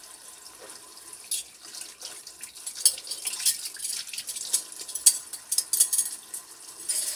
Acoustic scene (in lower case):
kitchen